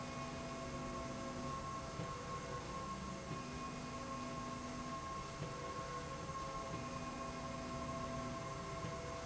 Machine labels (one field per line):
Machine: slide rail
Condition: normal